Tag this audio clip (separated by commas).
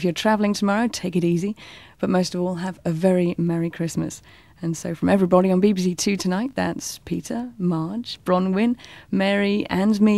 Speech